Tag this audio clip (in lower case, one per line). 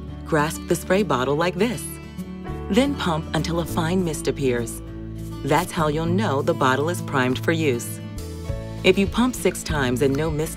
speech
music